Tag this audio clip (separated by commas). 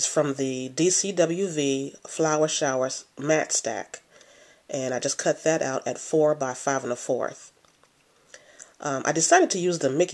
Speech